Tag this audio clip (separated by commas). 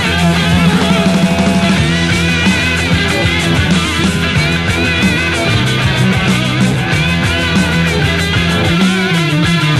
Music